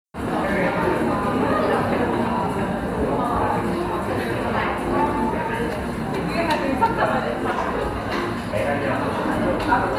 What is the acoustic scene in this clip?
cafe